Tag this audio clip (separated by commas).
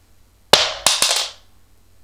Coin (dropping), Domestic sounds